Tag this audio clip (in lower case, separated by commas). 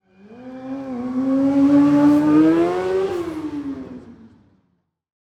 motorcycle, motor vehicle (road), vehicle